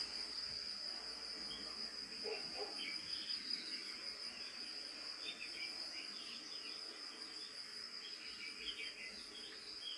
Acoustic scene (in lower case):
park